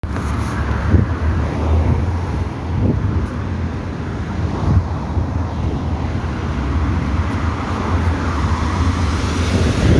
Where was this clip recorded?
on a street